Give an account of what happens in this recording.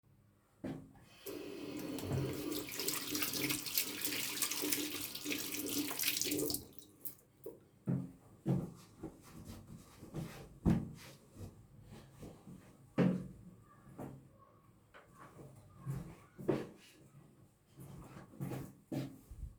I went to the sink, turned on the tap, washed my hands, dried them with a towel and walked away.